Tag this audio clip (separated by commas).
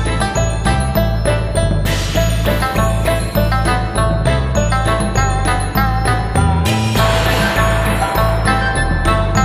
Jingle